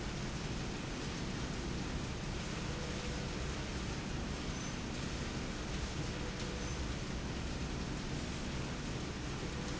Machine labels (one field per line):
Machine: slide rail